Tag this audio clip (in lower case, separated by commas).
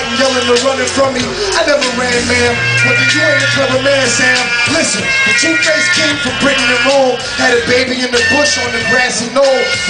music, electronica